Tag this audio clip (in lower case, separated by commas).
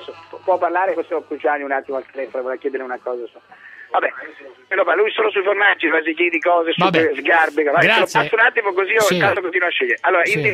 speech, radio